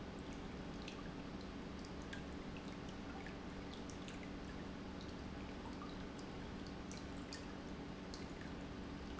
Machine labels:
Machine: pump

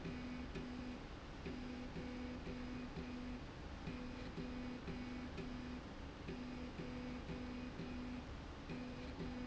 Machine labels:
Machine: slide rail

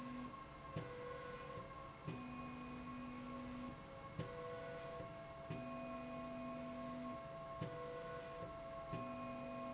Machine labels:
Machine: slide rail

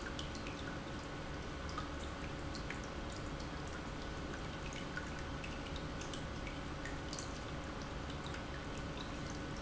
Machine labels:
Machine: pump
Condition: normal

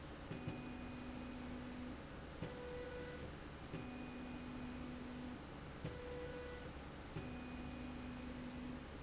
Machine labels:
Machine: slide rail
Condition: normal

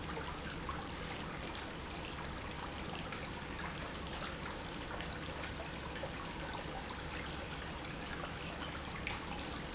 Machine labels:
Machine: pump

